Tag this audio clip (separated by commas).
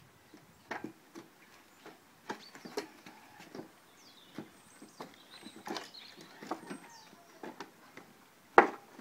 Breaking